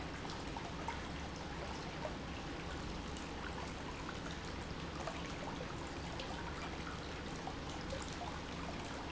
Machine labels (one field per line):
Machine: pump